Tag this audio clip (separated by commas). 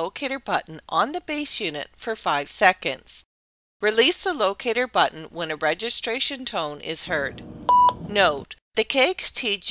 Speech